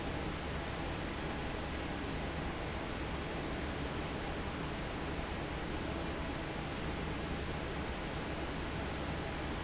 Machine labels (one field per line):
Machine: fan